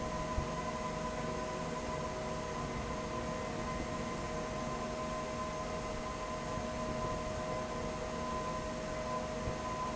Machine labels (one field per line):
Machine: fan